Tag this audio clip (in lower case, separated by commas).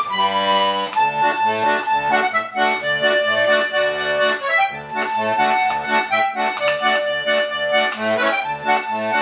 music